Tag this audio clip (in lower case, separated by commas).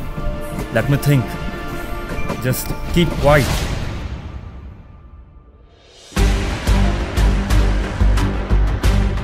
music, speech